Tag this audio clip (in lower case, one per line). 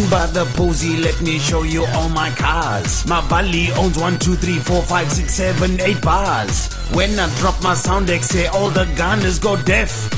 music